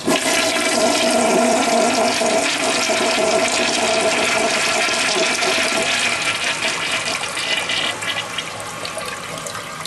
A toilet flushing